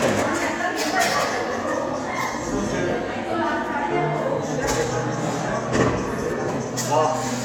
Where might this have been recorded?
in a cafe